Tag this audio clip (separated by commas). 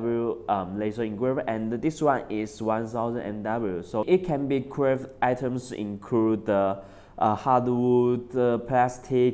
Speech